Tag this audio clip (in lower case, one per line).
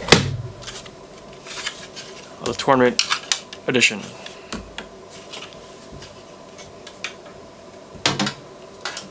speech
inside a small room